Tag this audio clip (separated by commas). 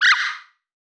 Animal